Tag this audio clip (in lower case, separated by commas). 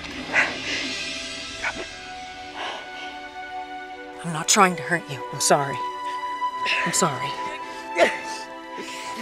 speech, music